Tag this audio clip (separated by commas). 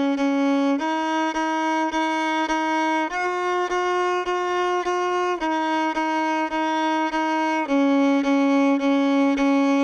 Music, Musical instrument, fiddle